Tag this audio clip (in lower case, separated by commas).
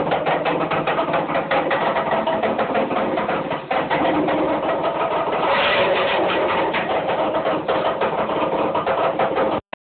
clatter